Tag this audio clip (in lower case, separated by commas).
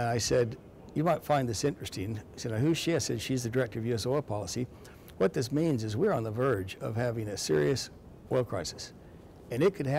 speech